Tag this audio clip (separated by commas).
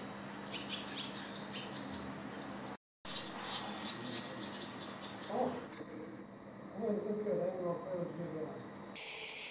barn swallow calling